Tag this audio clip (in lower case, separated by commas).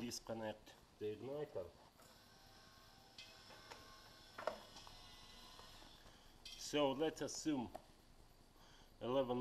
inside a small room, speech